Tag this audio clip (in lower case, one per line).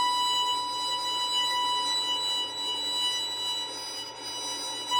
music
bowed string instrument
musical instrument